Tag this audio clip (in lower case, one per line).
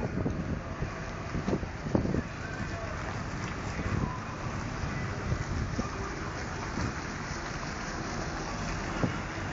vehicle